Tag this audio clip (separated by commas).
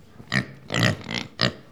Animal, livestock